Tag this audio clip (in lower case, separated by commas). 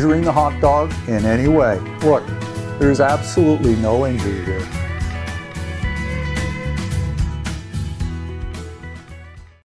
music, speech